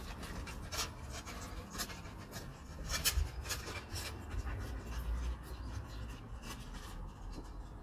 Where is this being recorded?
in a residential area